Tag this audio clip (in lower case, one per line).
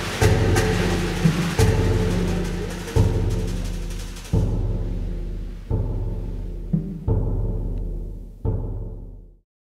music